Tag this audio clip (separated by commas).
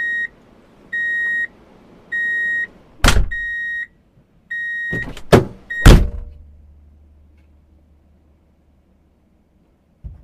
reversing beeps